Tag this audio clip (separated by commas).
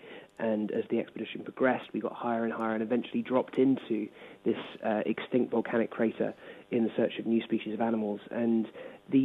Speech